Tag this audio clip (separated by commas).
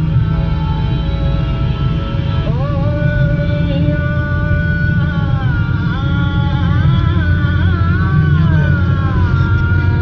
Vehicle, Car